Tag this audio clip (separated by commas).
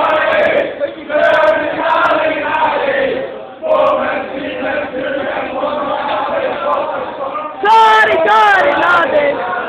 Speech